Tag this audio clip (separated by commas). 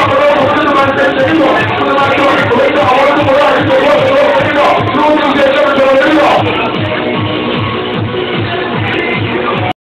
Music